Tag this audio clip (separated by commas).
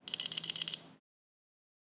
Alarm